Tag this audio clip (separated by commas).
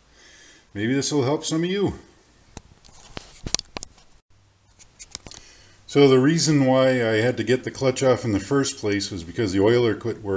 Speech